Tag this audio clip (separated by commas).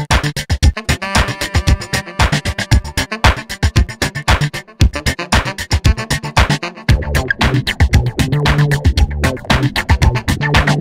Trance music